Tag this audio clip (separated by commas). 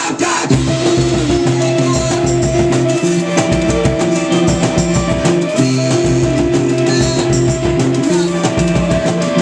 Music